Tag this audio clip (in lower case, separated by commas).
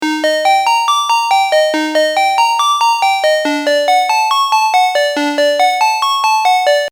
telephone, alarm, ringtone